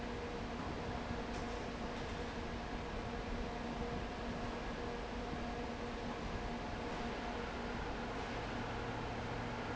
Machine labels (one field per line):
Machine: fan